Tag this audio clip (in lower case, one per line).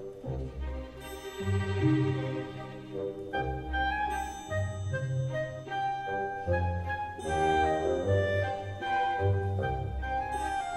music